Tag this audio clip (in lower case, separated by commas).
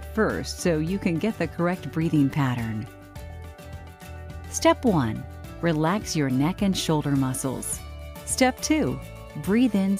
music, speech